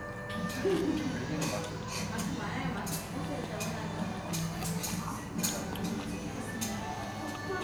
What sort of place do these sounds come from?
restaurant